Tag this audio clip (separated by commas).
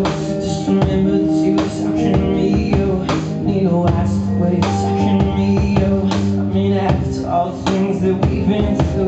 Music